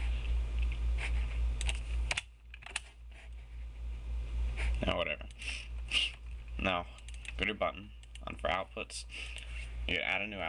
A person typing on a keyboard and speaking